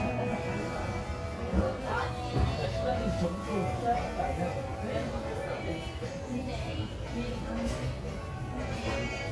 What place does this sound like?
crowded indoor space